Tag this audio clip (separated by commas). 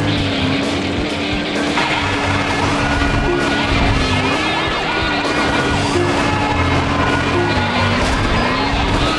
Music, Vehicle, Car